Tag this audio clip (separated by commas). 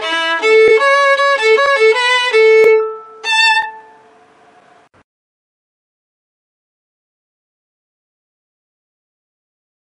fiddle, Musical instrument, Music